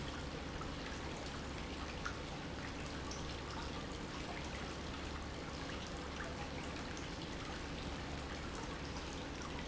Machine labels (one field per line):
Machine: pump